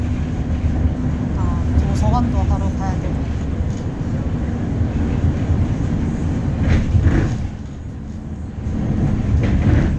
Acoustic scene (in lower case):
bus